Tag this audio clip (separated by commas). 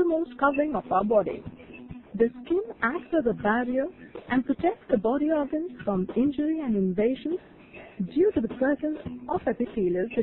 Speech, Music